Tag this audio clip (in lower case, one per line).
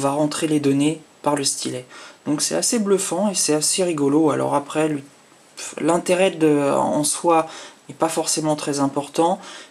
speech